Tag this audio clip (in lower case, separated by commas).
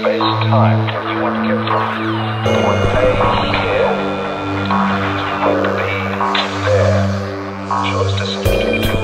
music, speech